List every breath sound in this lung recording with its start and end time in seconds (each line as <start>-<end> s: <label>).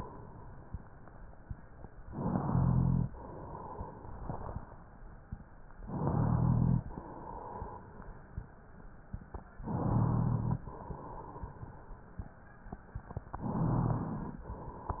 2.02-3.07 s: inhalation
2.54-3.10 s: rhonchi
3.07-4.78 s: exhalation
5.83-6.84 s: inhalation
5.98-6.86 s: rhonchi
6.84-8.45 s: exhalation
9.65-10.66 s: inhalation
9.65-10.59 s: rhonchi
10.66-12.07 s: exhalation
13.02-14.43 s: inhalation
13.37-14.40 s: rhonchi